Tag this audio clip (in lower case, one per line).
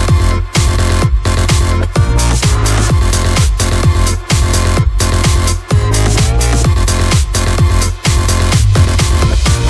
music